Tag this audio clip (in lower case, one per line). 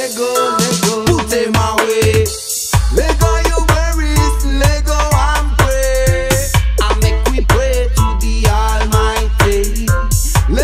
music